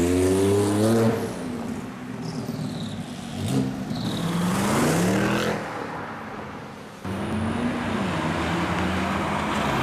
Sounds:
bus

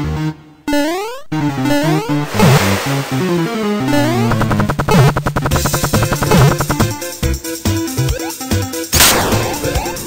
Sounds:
music

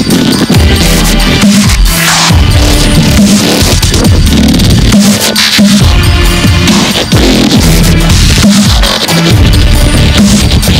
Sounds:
music, dubstep

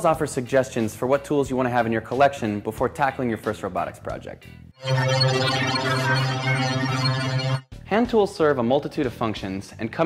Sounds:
speech, music

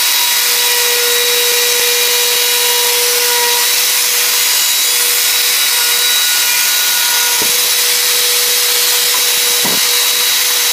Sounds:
tools

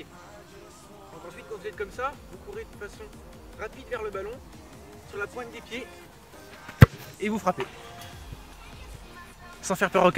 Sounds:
shot football

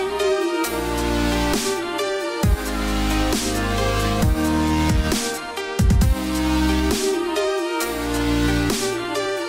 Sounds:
music

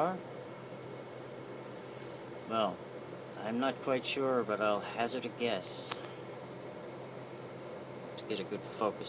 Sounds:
speech

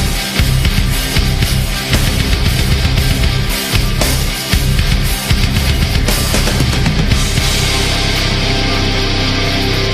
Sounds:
music

